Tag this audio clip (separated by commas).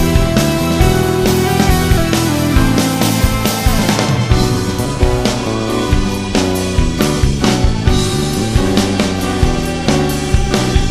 Music, Rhythm and blues